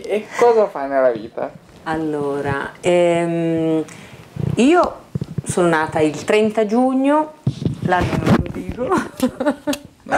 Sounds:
speech

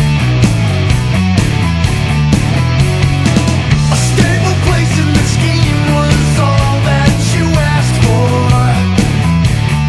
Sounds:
music

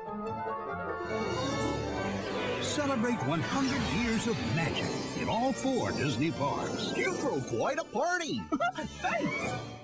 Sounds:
music, speech

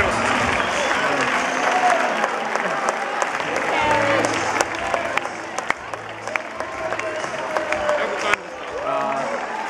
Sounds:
speech, music, outside, urban or man-made

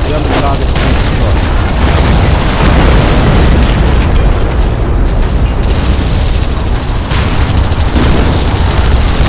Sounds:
artillery fire

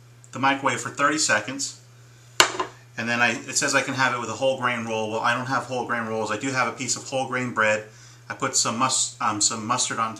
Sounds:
speech

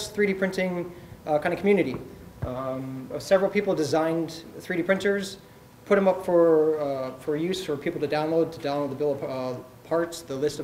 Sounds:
speech

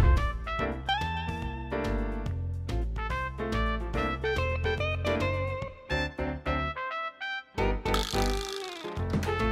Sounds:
music, door

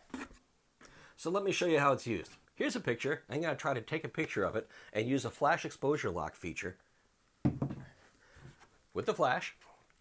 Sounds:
speech

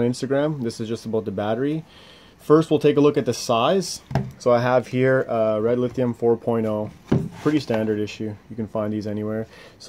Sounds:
speech

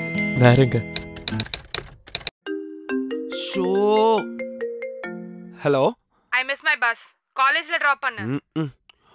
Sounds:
music, speech, outside, urban or man-made

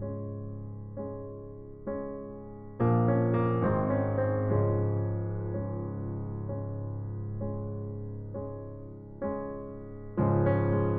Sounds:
music

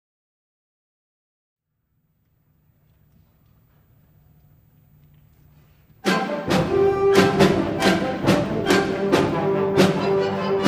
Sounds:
music

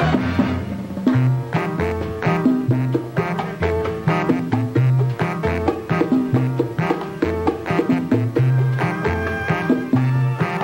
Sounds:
salsa music, music

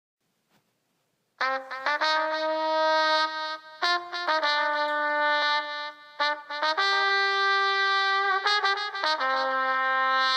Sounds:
brass instrument

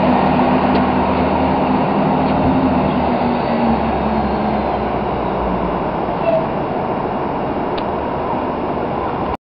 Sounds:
vehicle, driving buses, bus

